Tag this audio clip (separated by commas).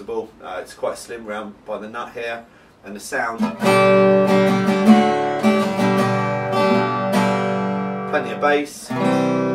Music, Speech, Plucked string instrument, Musical instrument, Strum, Acoustic guitar, Guitar